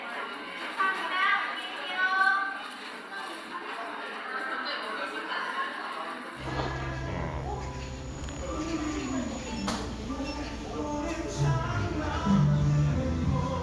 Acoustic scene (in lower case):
cafe